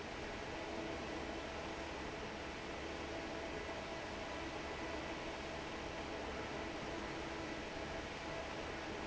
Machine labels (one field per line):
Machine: fan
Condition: normal